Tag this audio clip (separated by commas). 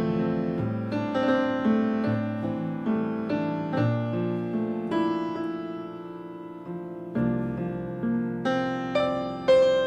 Music